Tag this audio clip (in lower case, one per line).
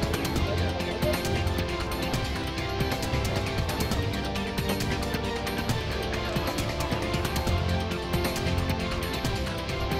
speech
music